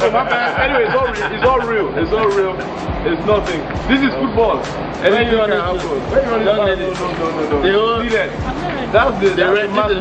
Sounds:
Music, Laughter, Speech

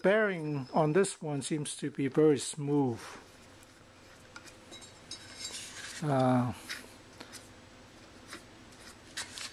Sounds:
Speech

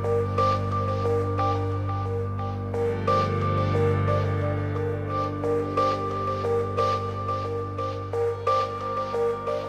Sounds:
Music, Ocean

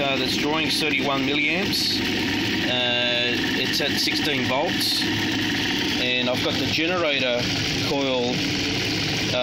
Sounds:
Speech

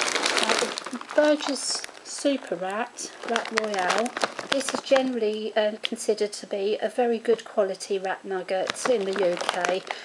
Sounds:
Gurgling, Speech

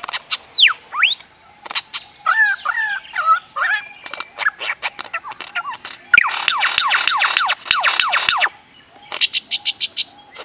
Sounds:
mynah bird singing

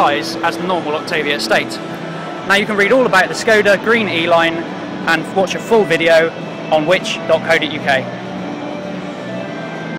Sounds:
Music, Speech, Vehicle

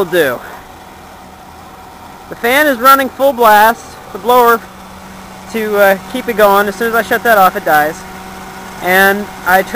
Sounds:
Car, Speech, Vehicle

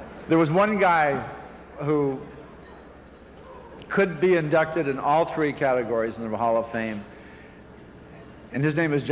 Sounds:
monologue, Speech, Male speech

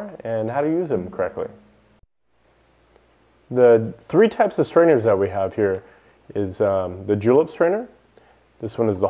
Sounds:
Speech

